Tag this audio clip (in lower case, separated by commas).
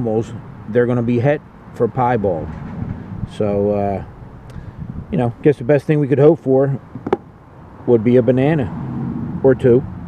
speech